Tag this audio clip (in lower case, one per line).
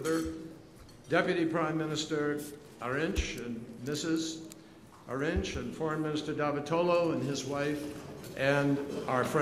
speech